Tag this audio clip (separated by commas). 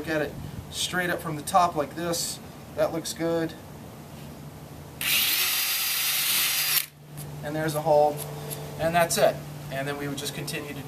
Drill, Speech